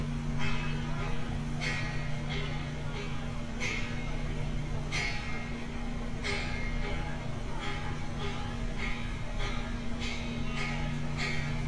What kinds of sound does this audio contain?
person or small group talking